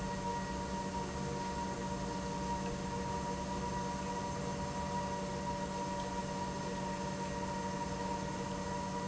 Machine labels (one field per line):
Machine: pump